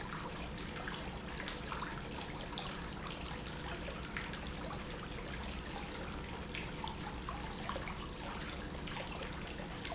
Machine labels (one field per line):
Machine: pump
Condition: normal